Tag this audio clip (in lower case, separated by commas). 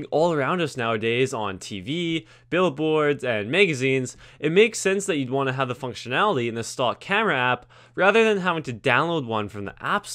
speech